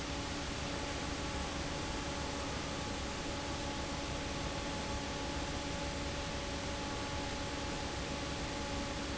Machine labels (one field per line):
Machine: fan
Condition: normal